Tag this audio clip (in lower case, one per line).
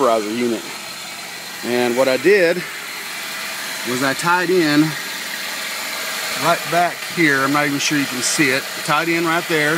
speech
vehicle
car
engine